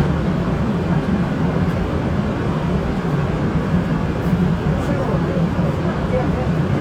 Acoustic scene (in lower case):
subway train